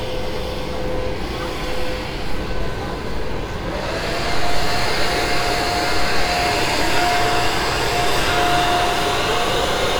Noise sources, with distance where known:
engine of unclear size, near

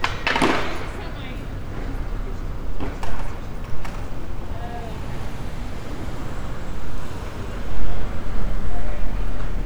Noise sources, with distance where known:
unidentified human voice

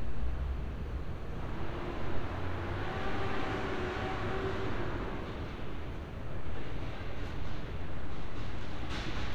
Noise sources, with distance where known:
medium-sounding engine

